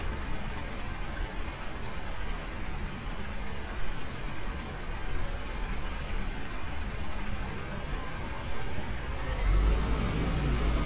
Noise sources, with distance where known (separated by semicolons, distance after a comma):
large-sounding engine